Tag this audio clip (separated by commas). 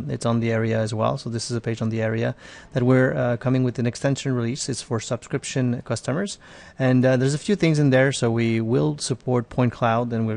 Speech